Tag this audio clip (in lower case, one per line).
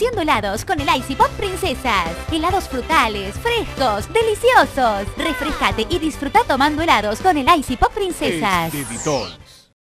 music
speech